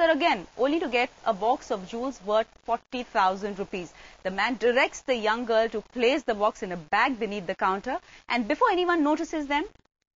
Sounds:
speech

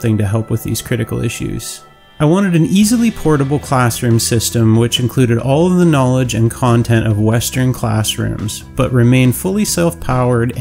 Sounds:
music, speech

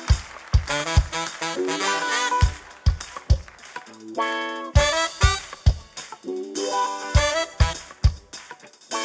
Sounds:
hammond organ, music

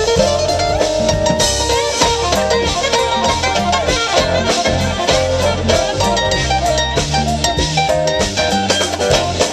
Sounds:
salsa music, music

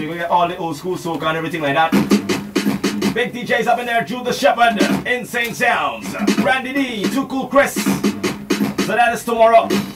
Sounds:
music, inside a small room

